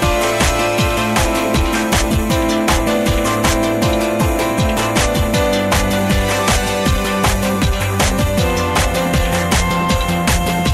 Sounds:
Background music, Music

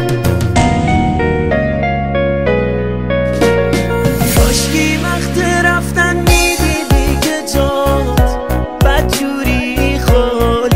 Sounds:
Music

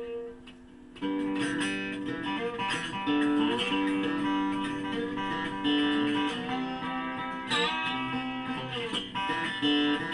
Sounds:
Musical instrument, Plucked string instrument, Steel guitar, Guitar, Music

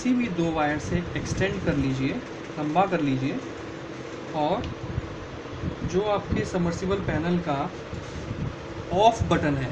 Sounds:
Speech

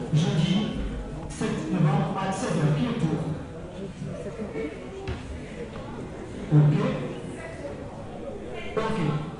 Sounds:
Speech

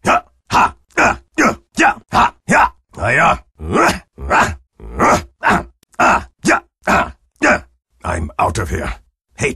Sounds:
Speech

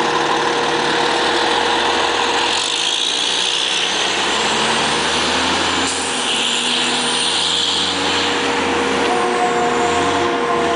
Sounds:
Truck, Vehicle

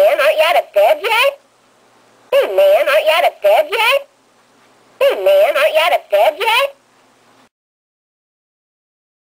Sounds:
Speech

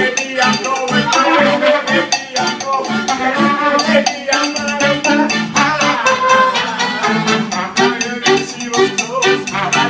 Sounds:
Music, Funny music

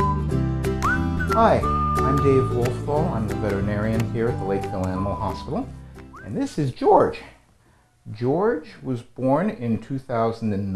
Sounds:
Speech, Music

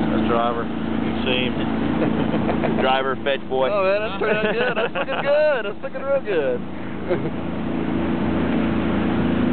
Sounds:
Boat, Speech

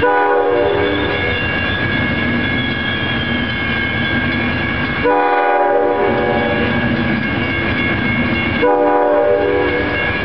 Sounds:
Railroad car, Train horn, Train, Rail transport

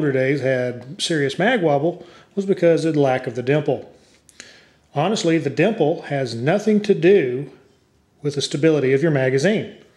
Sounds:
Speech

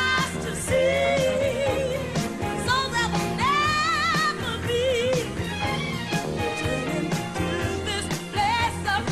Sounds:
Pop music, Singing

